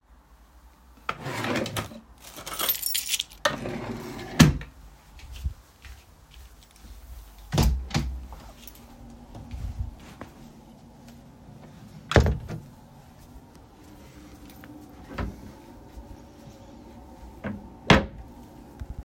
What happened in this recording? I opened the drawer, took my keys, closed the room, walked into the living room, and started searching in the wardrobe.